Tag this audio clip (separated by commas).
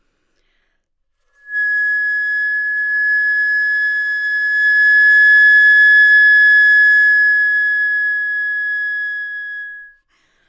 Music, Wind instrument, Musical instrument